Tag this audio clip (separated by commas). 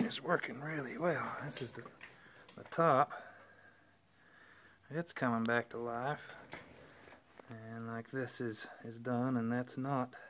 Speech